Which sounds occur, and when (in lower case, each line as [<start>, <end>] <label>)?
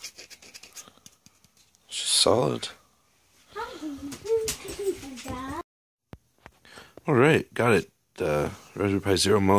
[0.00, 0.87] scratch
[0.00, 5.59] background noise
[0.69, 1.01] breathing
[0.98, 1.75] generic impact sounds
[1.84, 2.77] man speaking
[1.84, 5.59] conversation
[3.47, 5.59] kid speaking
[4.05, 5.59] generic impact sounds
[6.03, 9.55] background noise
[6.08, 6.13] tick
[6.38, 6.59] generic impact sounds
[6.61, 6.91] breathing
[6.92, 7.00] tick
[7.00, 9.55] conversation
[7.01, 7.87] man speaking
[8.13, 8.55] man speaking
[8.71, 9.55] man speaking